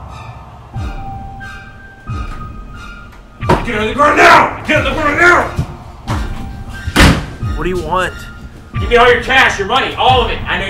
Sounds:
Music, Speech, inside a small room

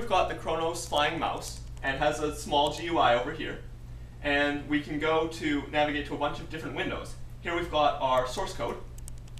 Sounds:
Speech

